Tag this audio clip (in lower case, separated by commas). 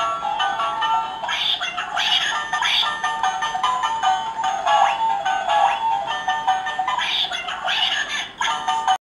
quack, music